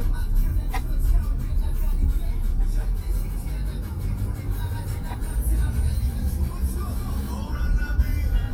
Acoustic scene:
car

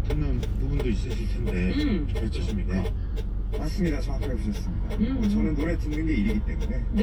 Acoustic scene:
car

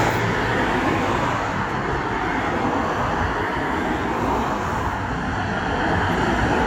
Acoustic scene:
street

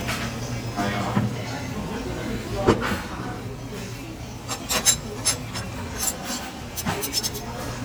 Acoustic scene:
restaurant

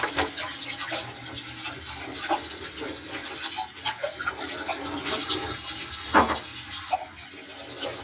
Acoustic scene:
kitchen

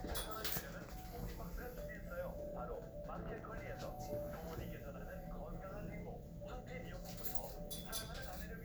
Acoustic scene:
elevator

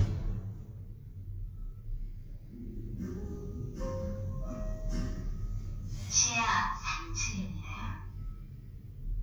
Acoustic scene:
elevator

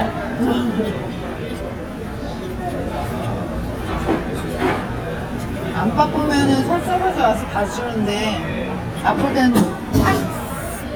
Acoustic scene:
crowded indoor space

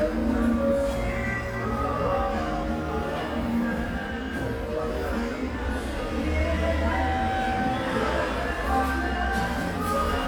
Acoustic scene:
cafe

